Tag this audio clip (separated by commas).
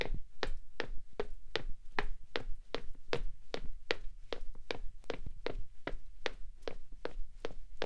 footsteps